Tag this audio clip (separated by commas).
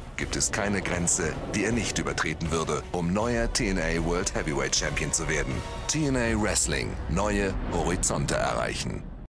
Speech, Music